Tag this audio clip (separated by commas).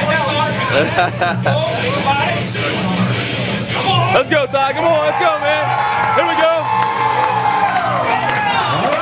Music, Speech